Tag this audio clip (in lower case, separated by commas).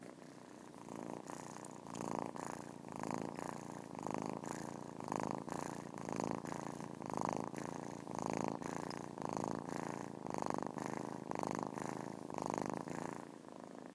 purr, animal, cat, pets